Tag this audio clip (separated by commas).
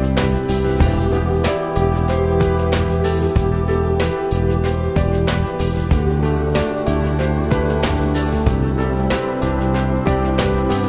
Music